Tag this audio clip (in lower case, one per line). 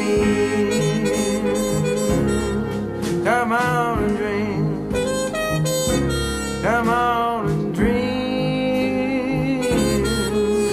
harmonica